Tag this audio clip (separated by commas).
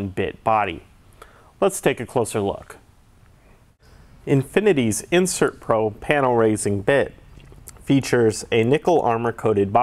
Speech